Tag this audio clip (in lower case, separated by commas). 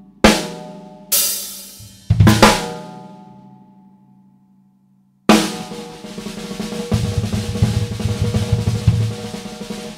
hi-hat, bass drum, cymbal, percussion, rimshot, drum roll, snare drum, drum kit, drum